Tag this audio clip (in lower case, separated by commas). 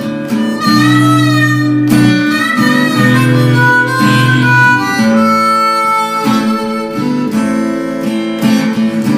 musical instrument, music, guitar